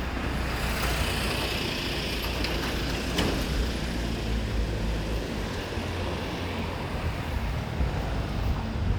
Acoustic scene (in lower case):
residential area